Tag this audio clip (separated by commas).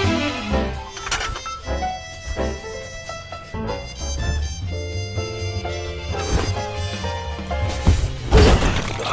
Music